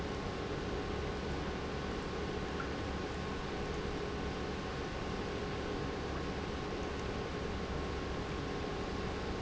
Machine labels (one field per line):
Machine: pump